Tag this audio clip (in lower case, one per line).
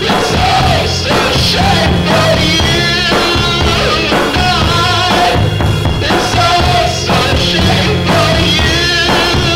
roll
music